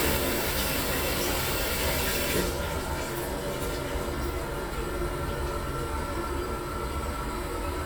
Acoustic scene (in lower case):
restroom